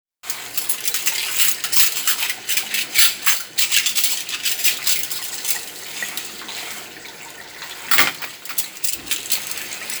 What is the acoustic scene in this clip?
kitchen